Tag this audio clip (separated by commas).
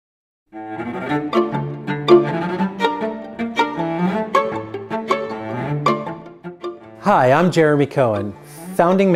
String section